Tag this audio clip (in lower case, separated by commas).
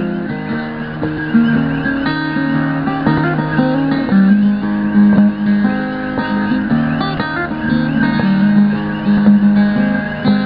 music, guitar, acoustic guitar, plucked string instrument, musical instrument, strum